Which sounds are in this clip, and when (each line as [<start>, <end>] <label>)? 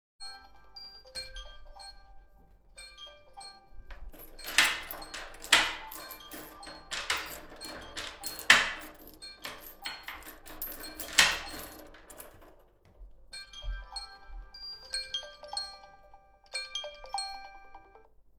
[0.00, 12.29] phone ringing
[4.33, 12.35] keys
[4.39, 12.37] footsteps
[13.31, 18.39] phone ringing